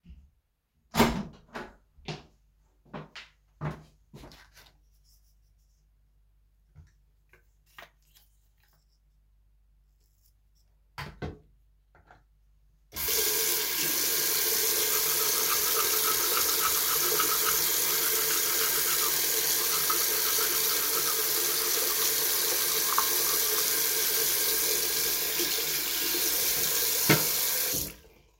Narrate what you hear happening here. I open the door to the bathroom, then i took my toothbrush and applied toothpaste, then i turned on the water and while the water was running i brushed my teeth